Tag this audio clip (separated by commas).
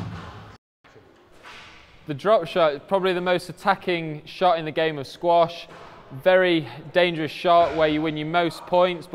playing squash